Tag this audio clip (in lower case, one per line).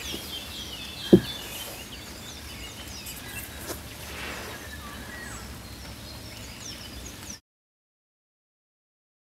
insect